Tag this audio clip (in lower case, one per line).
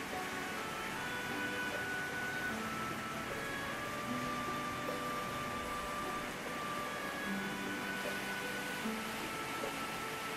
rain on surface
music